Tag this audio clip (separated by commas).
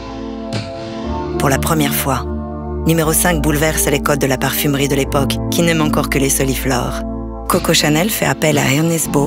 Speech, Music